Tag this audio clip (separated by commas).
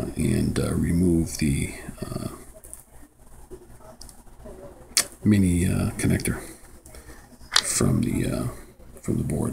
Speech, inside a small room